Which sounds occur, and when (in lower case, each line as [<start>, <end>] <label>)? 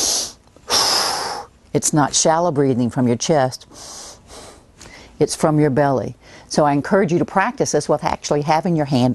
[4.74, 5.19] human sounds
[6.54, 9.14] female speech